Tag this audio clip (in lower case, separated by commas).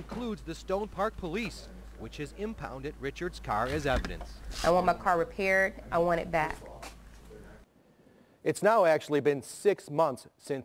speech